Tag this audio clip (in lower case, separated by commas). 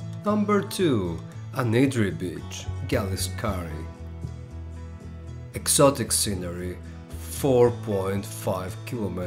striking pool